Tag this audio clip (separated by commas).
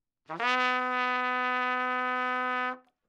Musical instrument, Brass instrument, Music, Trumpet